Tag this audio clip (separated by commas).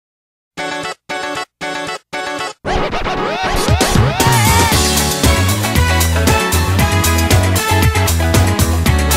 Cacophony